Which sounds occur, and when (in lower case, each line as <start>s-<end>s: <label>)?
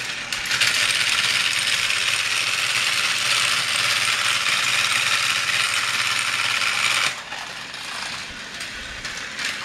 0.0s-9.6s: mechanisms